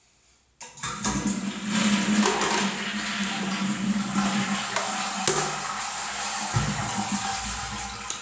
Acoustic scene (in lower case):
restroom